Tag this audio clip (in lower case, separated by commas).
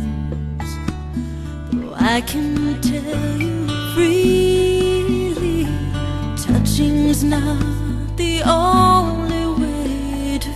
music